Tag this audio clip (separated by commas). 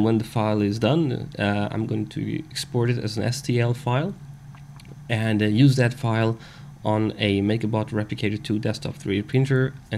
Speech